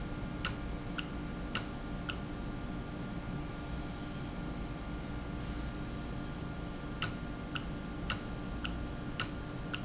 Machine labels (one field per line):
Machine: valve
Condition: normal